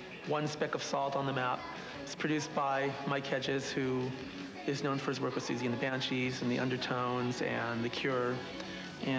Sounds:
music, speech

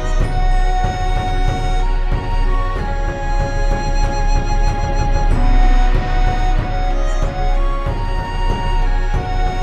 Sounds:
music

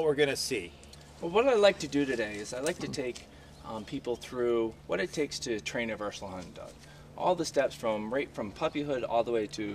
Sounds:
speech

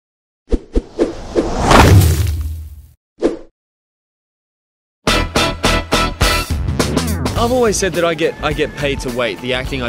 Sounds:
inside a small room, speech, music

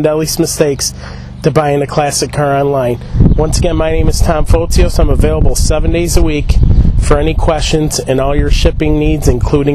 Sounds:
speech

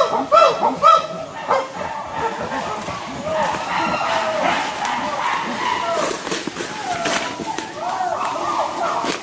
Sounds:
chimpanzee pant-hooting

